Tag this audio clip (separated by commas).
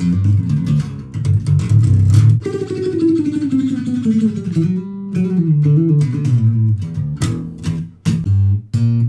playing bass guitar